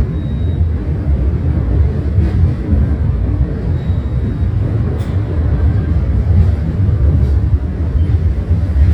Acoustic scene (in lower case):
subway station